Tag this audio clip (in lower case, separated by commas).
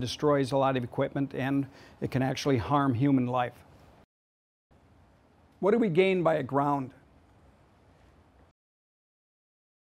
speech